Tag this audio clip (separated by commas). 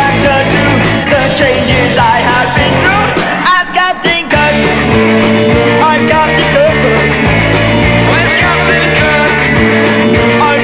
Music